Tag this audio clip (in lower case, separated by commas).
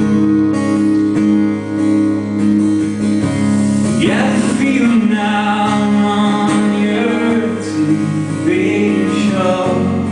music